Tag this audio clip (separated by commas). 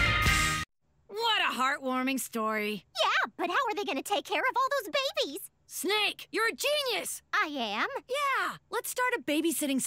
Music, Speech